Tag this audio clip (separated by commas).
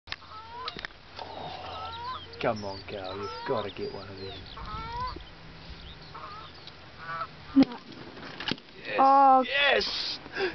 Honk, Goose, Fowl